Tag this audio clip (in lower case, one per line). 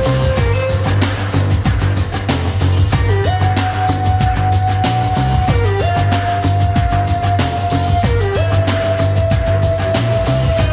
music